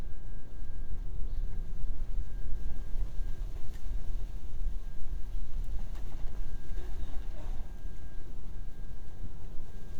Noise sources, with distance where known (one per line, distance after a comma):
background noise